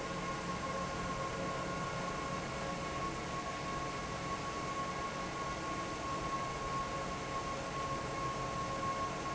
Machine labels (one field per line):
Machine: fan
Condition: normal